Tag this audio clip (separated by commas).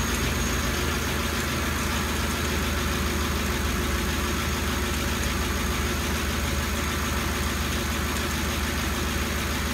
car engine knocking